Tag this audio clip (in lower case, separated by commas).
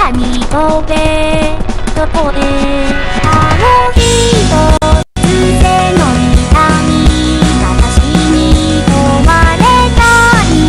music, theme music